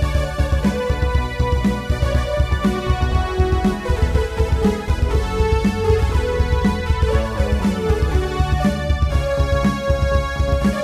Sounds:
playing synthesizer

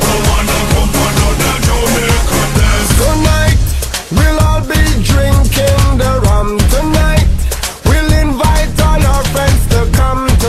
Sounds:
happy music
music

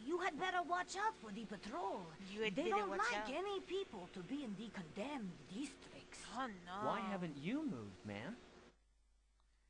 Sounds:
speech

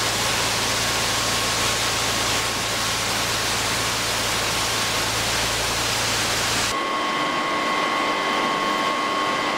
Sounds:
pump (liquid)

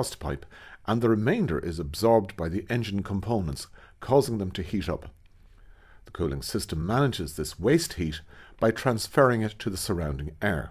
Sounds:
speech

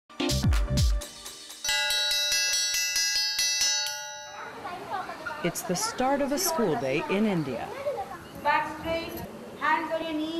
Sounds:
speech
child speech
music

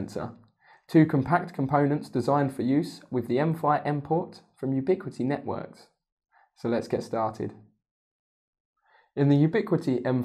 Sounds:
speech

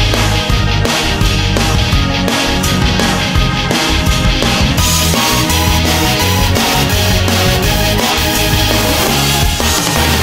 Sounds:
music

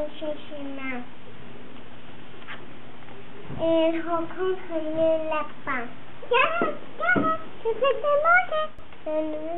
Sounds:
kid speaking

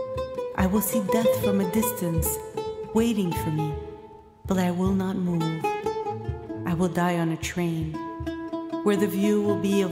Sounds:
speech
music

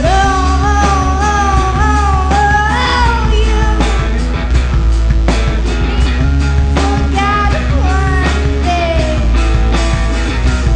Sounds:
music

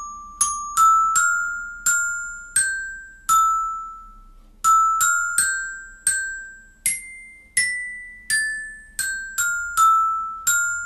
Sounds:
xylophone
mallet percussion
glockenspiel

